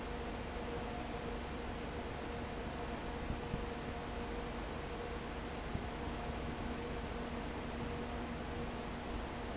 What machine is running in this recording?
fan